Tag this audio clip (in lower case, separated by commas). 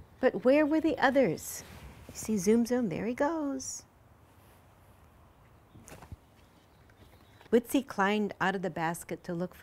speech